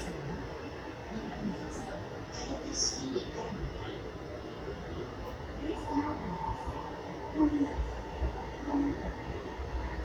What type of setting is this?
subway train